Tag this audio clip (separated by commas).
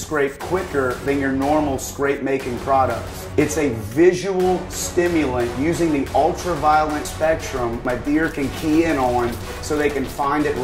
Speech, Music